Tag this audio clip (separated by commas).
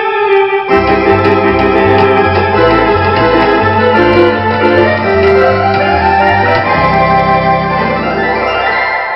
Music